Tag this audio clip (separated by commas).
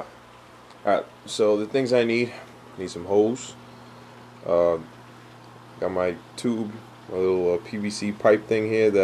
Speech